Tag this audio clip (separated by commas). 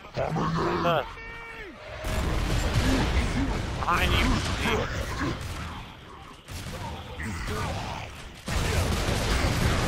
Speech